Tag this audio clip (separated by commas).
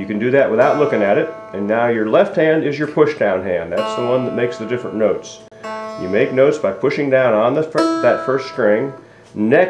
Musical instrument, Speech, Music, Plucked string instrument